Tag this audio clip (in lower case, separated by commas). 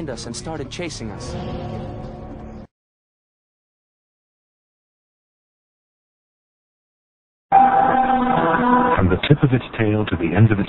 music, speech